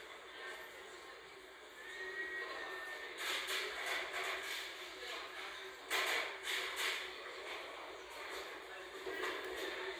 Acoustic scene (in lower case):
crowded indoor space